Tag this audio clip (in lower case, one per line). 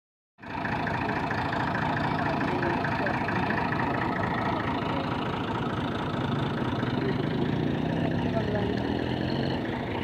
pumping water